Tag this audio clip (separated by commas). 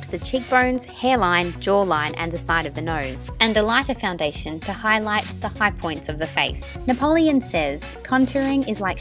Music, Speech